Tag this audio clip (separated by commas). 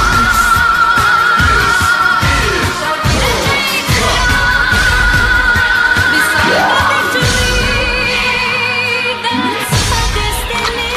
Music